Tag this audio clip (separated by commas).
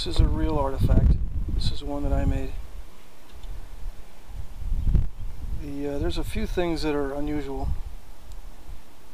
Speech